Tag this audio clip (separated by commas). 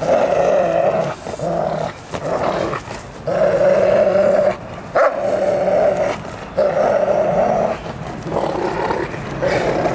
Yip